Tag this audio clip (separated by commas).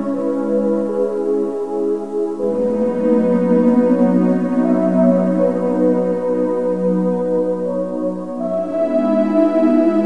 Music